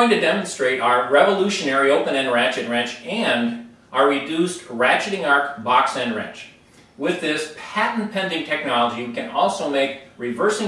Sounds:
Speech

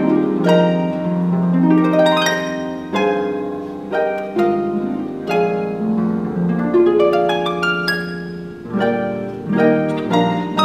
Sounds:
Music, playing harp, Plucked string instrument, Musical instrument, Harp

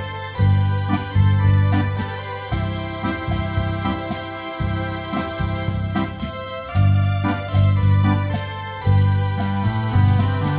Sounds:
playing electronic organ

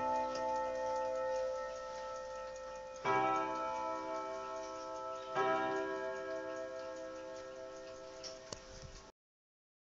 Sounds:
inside a small room, Clock

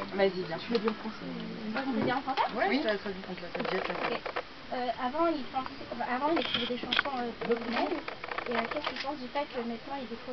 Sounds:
Speech

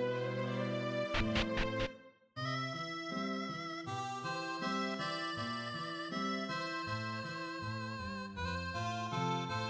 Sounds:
Music

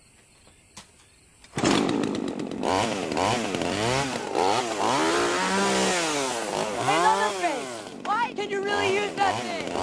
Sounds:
Speech, Chainsaw

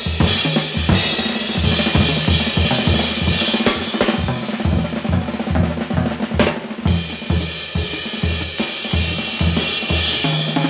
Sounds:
Snare drum, Rimshot, Percussion, Drum roll, Drum, Bass drum, Drum kit

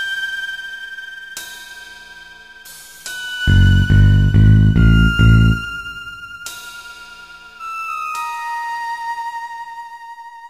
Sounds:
Music

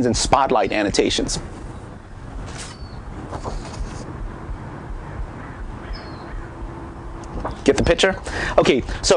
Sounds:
Speech, outside, rural or natural

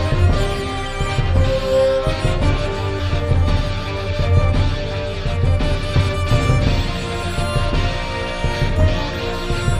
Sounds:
Music, Musical instrument, Acoustic guitar, Violin, Guitar

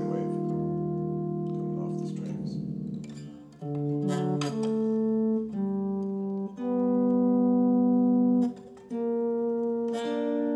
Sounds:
Synthesizer, Guitar, Plucked string instrument, Music, Musical instrument, Acoustic guitar, Speech

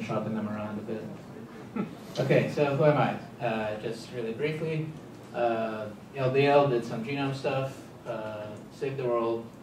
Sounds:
Speech

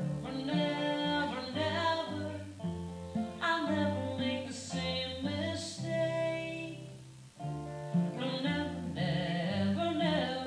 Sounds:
Musical instrument, Guitar, Cello, Music

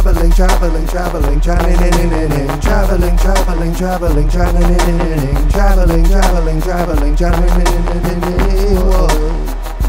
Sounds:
Burst, Music

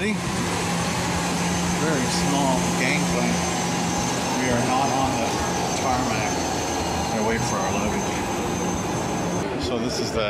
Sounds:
Speech

